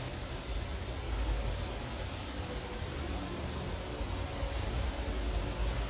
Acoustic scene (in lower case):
elevator